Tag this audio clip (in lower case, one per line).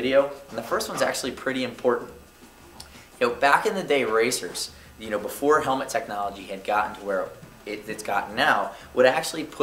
speech